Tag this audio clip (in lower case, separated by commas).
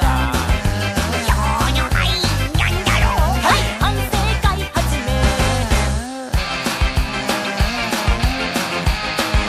ska, music